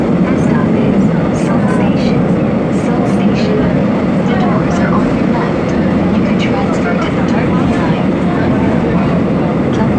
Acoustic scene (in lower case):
subway train